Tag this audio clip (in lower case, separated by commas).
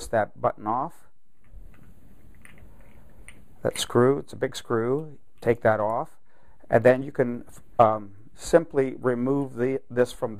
speech